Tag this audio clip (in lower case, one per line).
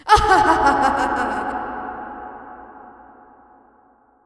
laughter
human voice